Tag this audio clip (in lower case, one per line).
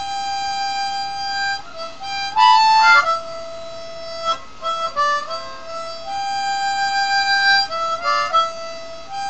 playing harmonica